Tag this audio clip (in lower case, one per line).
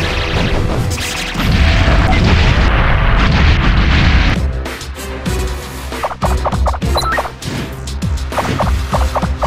music